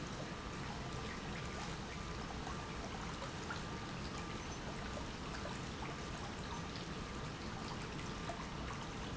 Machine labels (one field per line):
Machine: pump